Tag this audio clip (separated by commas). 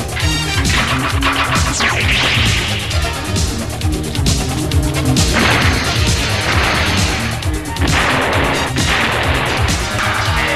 Music